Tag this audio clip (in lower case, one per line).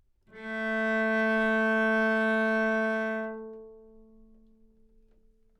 music
musical instrument
bowed string instrument